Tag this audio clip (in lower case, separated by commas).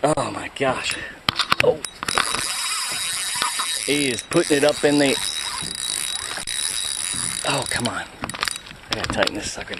speech